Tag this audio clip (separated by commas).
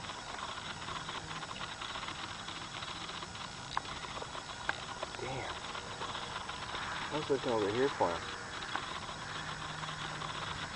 Speech